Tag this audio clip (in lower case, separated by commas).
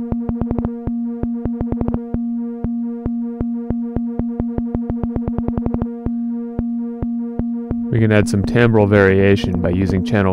speech, synthesizer, music